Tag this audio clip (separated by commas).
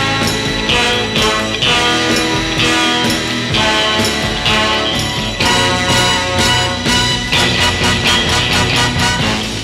Music, Background music